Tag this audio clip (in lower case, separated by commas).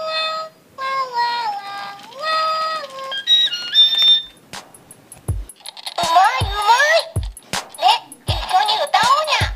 speech, music